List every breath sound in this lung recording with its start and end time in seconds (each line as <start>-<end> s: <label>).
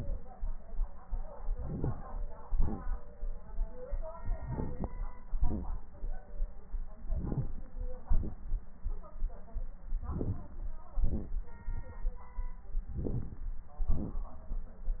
1.52-1.99 s: inhalation
2.49-2.85 s: exhalation
4.42-4.88 s: inhalation
5.37-5.83 s: exhalation
7.08-7.53 s: inhalation
8.08-8.39 s: exhalation
10.13-10.53 s: inhalation
11.01-11.40 s: exhalation
12.92-13.45 s: inhalation
13.91-14.21 s: exhalation